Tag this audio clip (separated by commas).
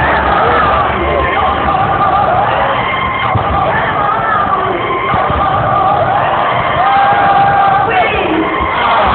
Speech